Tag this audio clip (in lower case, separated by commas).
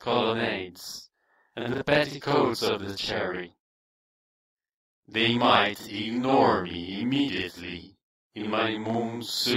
speech